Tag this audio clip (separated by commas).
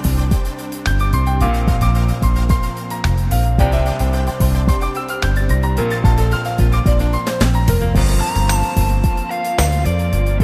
Music